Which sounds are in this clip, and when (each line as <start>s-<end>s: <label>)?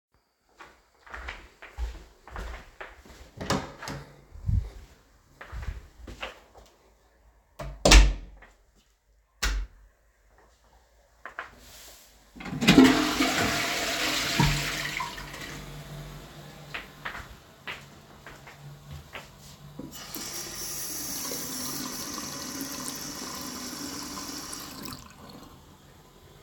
1.0s-6.6s: footsteps
3.3s-4.7s: door
7.6s-8.6s: door
9.3s-9.8s: light switch
11.2s-11.6s: footsteps
12.3s-16.0s: toilet flushing
16.6s-19.7s: footsteps
19.8s-25.5s: running water